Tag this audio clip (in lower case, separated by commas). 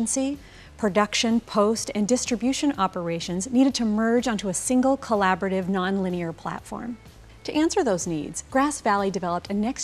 speech, music